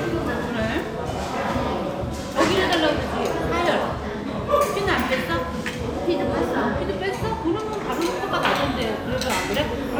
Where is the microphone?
in a restaurant